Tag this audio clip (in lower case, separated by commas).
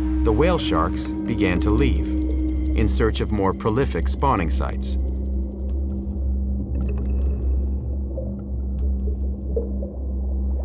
speech